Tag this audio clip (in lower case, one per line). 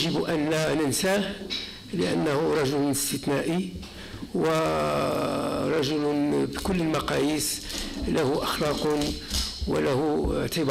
speech